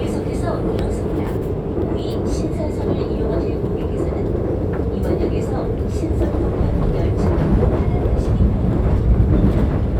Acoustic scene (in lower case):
subway train